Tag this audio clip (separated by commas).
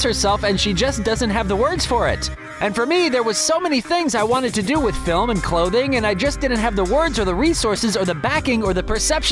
Speech, Music